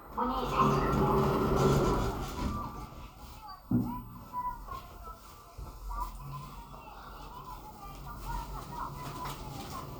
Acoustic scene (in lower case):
elevator